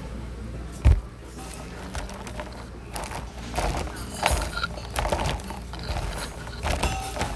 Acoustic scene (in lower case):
cafe